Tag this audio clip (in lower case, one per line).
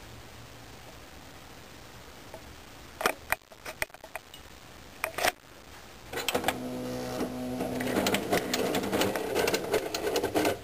printer